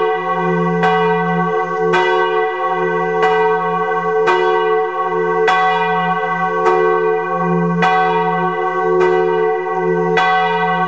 A bell ringing